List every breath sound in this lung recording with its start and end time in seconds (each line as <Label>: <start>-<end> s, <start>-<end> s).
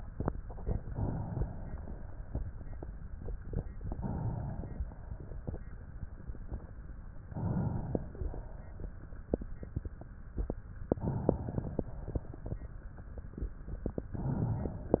Inhalation: 0.31-1.74 s, 3.81-4.87 s, 7.25-8.15 s, 10.83-11.89 s
Exhalation: 4.87-6.31 s, 8.16-9.96 s, 11.88-13.55 s
Crackles: 11.88-13.55 s